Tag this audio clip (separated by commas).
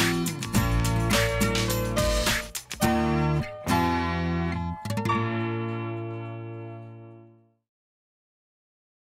Music